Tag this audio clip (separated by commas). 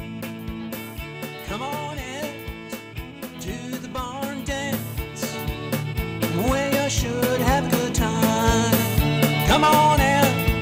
Country, Bluegrass, Music